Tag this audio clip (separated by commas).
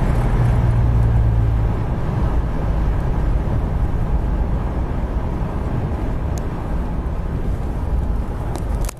Car, Vehicle